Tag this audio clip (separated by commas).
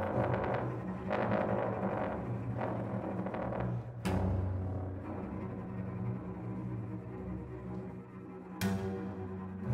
Music, Musical instrument, Cello, Bowed string instrument, Double bass